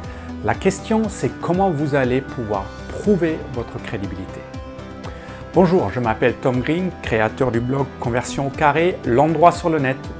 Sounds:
music, speech

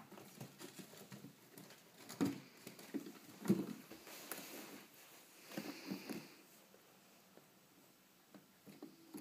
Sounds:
chinchilla barking

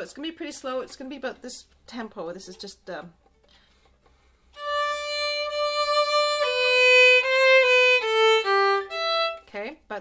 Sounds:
musical instrument, speech, music, fiddle

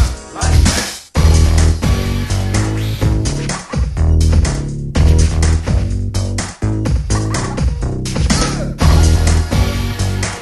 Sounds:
music

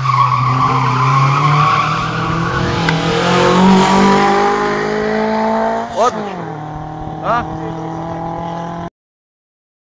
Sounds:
speech

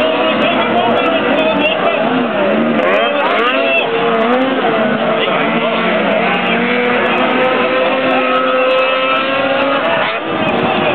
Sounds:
speech

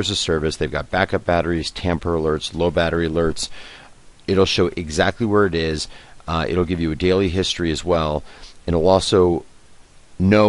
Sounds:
speech

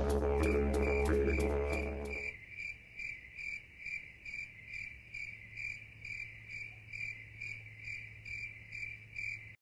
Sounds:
insect, cricket

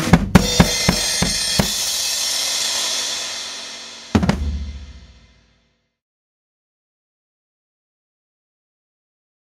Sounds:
music, drum roll, drum, drum kit, musical instrument

